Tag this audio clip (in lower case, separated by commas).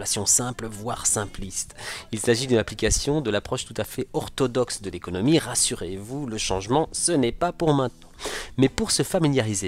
speech